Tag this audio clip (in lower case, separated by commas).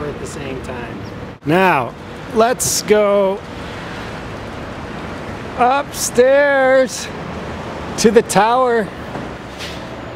speech